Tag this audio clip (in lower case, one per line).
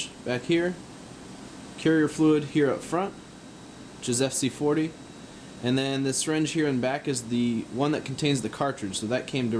speech